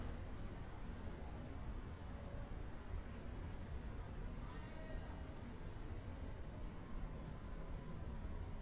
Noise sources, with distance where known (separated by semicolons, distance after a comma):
person or small group shouting, far